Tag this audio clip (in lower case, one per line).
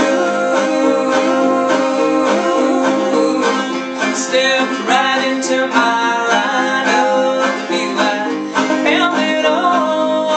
music